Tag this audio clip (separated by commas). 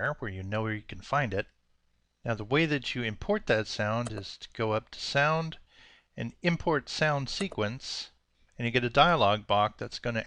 Speech